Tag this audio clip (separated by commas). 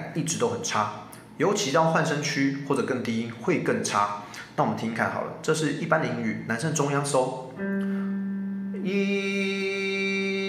metronome